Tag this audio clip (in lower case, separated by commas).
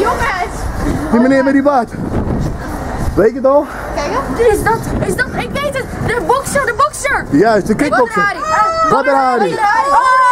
vehicle, speech